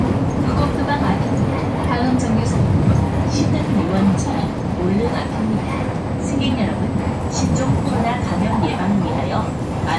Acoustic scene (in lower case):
bus